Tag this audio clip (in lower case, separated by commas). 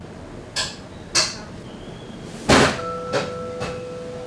domestic sounds, dishes, pots and pans